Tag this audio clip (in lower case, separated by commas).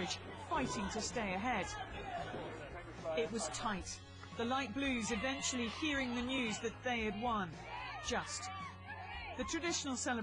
boat, vehicle, speech